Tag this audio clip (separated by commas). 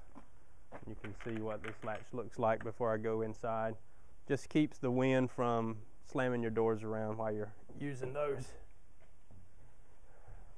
Speech